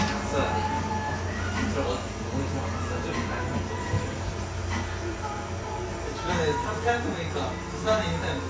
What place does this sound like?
cafe